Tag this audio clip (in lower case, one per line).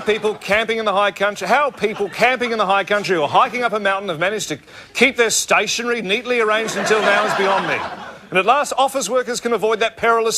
speech